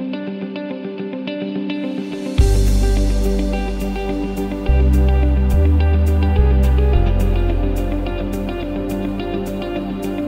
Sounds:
Musical instrument, Acoustic guitar, Pop music, Electric guitar, Theme music, Plucked string instrument, Guitar, Independent music, Tender music, Music

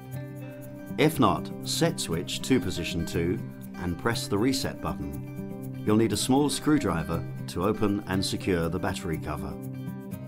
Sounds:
Music, Speech

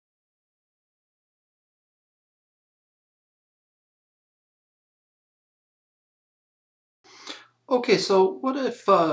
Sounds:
Speech

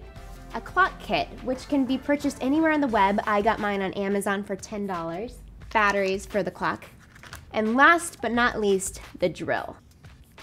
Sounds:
Speech, Music

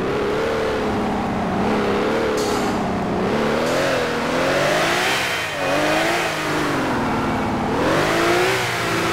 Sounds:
Vehicle, Car

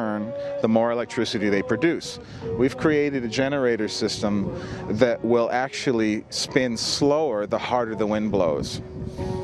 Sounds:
Speech, Music

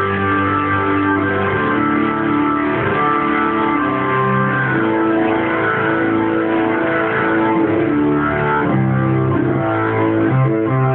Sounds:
playing hammond organ

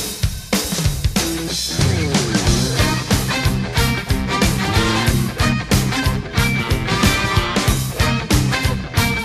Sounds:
Music

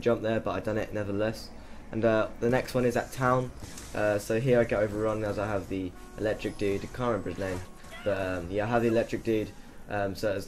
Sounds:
Speech

